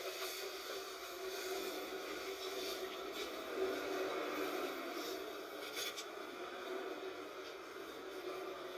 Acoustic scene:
bus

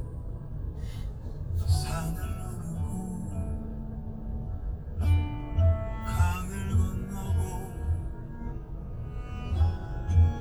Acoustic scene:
car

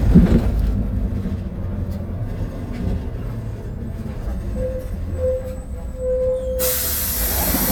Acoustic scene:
bus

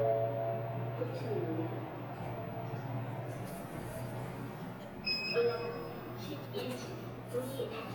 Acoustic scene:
elevator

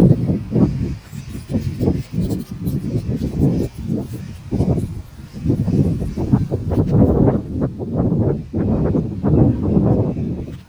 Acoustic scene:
park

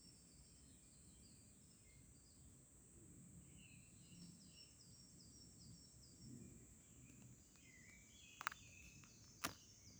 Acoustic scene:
park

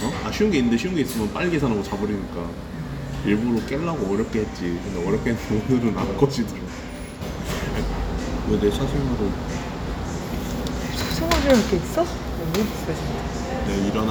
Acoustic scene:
cafe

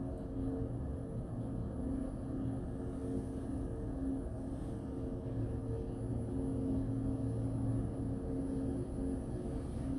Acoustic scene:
elevator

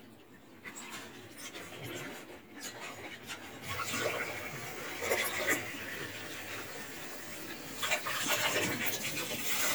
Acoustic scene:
kitchen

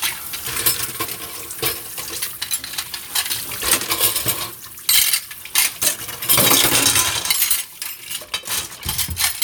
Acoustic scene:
kitchen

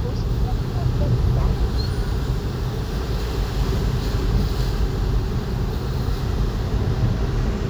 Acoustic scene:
car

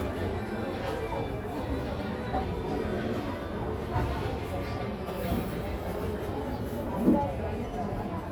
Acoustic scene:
crowded indoor space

